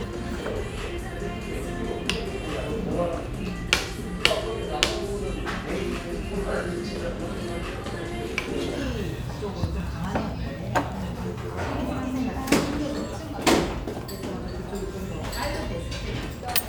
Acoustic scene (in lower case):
restaurant